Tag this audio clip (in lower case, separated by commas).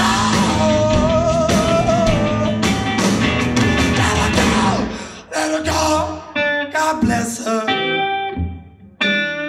plucked string instrument, singing, music